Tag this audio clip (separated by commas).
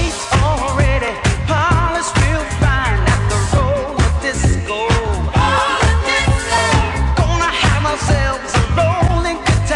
Disco, Music